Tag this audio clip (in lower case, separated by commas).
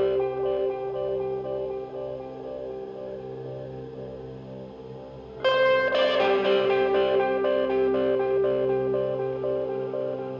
music